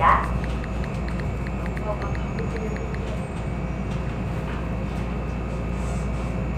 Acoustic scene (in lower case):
subway train